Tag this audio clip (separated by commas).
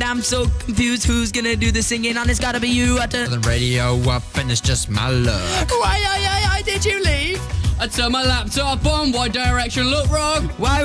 Music